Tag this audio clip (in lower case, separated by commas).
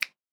hands, finger snapping